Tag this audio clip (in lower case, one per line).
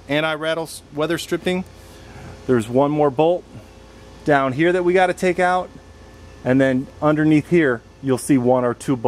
speech